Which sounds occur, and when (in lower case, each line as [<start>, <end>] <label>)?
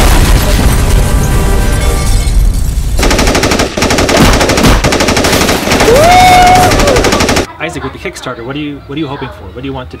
[0.00, 2.21] music
[0.00, 2.95] explosion
[1.04, 2.53] shatter
[2.95, 7.41] gunfire
[5.82, 6.76] shout
[7.43, 9.27] kid speaking
[7.45, 10.00] mechanisms
[7.54, 8.75] man speaking
[8.87, 10.00] man speaking